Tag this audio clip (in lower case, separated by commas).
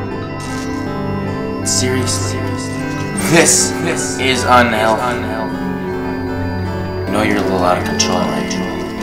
music, speech